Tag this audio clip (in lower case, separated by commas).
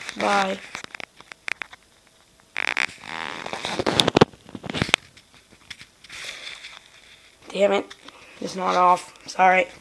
speech